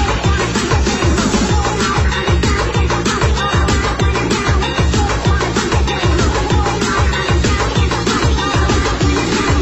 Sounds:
Music, Soundtrack music

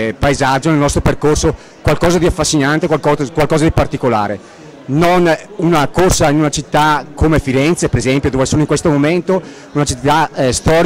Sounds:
Speech

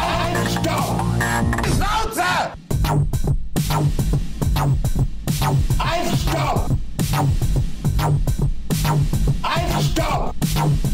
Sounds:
Dubstep, Music, Speech

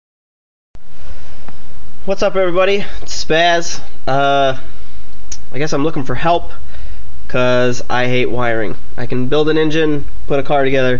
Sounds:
Speech

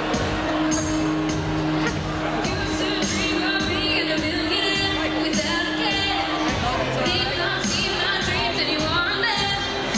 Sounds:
Speech, Female singing, Music

